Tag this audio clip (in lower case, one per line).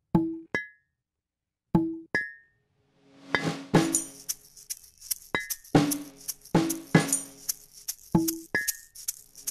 music